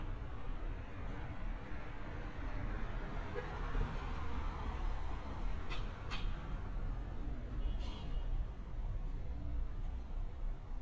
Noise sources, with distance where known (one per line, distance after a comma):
medium-sounding engine, far
car horn, far